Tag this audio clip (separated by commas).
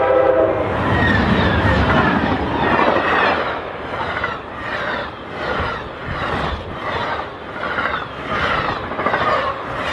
swoosh